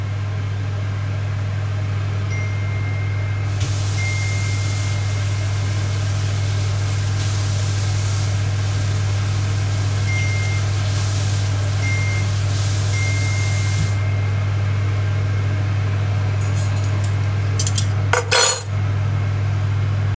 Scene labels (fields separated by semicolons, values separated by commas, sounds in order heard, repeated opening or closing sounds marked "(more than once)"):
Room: kitchen; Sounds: phone ringing, running water, cutlery and dishes